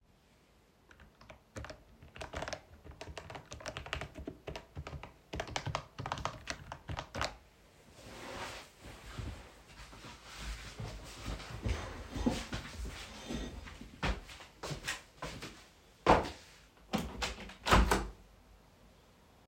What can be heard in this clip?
keyboard typing, footsteps, window